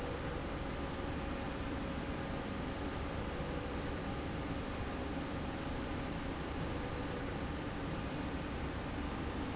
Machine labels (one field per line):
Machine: slide rail